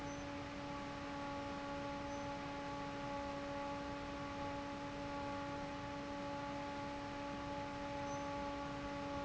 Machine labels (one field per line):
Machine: fan